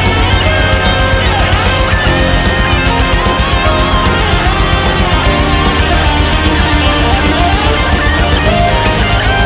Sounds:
Music

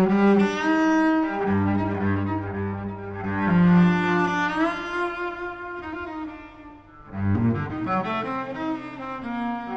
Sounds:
Cello, Bowed string instrument

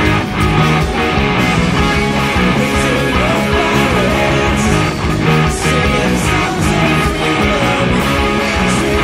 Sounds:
Music, Musical instrument, Guitar, Singing

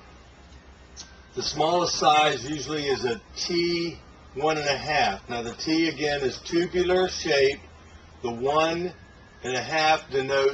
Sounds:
Speech

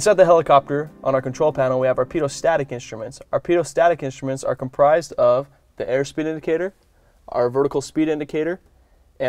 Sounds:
Speech

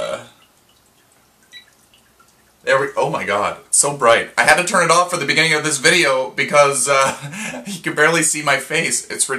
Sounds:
Speech, inside a small room

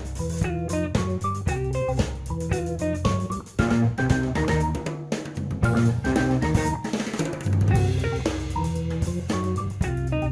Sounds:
Music

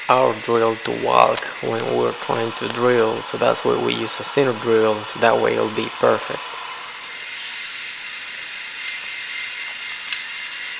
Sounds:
Drill, Power tool, Tools

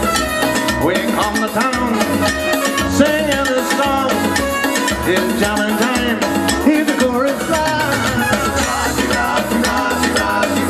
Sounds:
Music, Steelpan

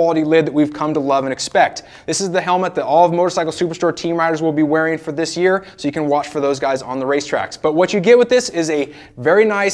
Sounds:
Speech

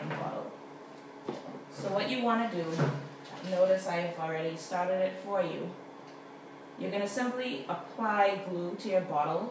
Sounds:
Speech

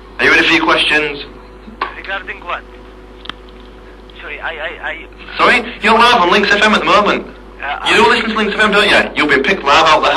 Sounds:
Speech

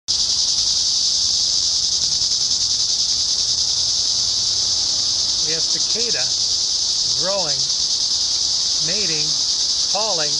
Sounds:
Cricket, Insect

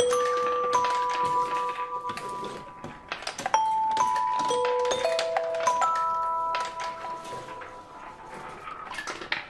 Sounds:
playing glockenspiel

